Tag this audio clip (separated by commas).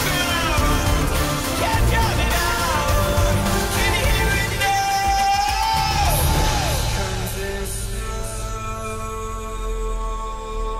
Music